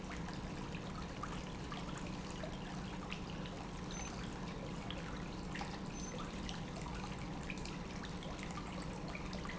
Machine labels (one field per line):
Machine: pump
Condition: normal